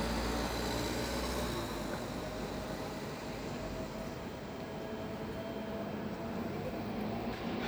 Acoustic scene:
street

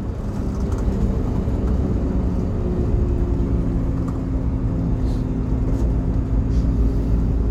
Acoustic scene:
bus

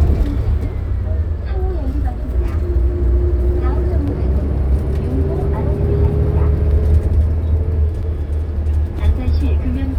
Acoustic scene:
bus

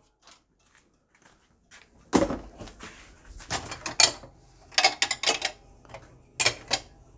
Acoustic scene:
kitchen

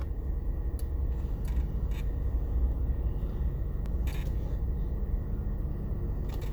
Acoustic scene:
car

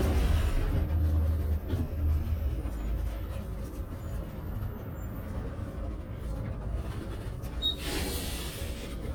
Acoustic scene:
bus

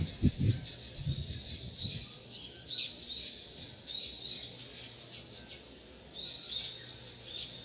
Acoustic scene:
park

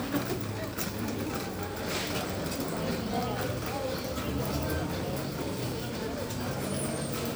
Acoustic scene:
crowded indoor space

